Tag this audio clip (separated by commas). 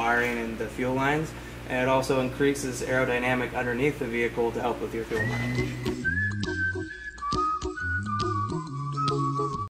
Speech, Music